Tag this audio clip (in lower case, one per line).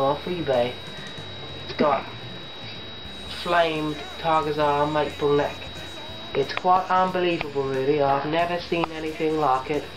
music
speech